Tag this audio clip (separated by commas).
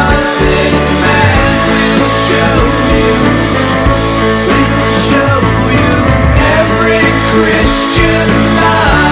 Grunge, Music